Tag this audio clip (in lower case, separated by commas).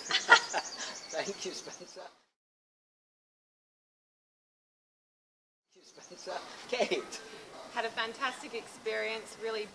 bird